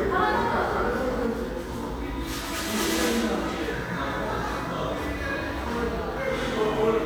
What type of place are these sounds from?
cafe